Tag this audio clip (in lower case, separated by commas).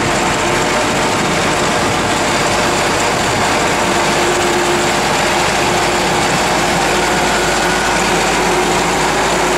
outside, rural or natural, vehicle